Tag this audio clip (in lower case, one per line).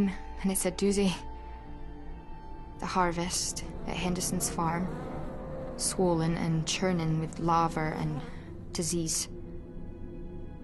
speech
music